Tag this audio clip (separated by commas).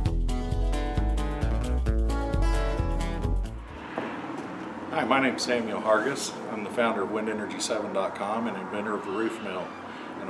Speech, Music